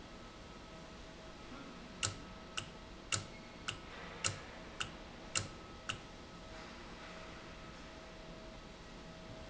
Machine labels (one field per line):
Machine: valve